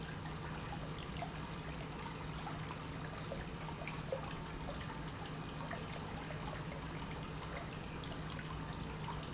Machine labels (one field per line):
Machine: pump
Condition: normal